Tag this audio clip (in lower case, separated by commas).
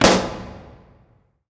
explosion